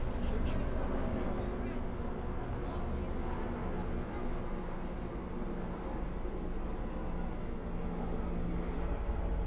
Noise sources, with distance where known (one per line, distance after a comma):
engine of unclear size
person or small group talking, far